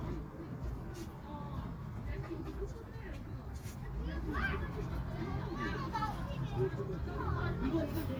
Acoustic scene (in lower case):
residential area